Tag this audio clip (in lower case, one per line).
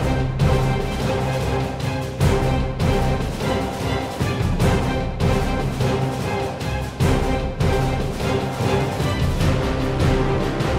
music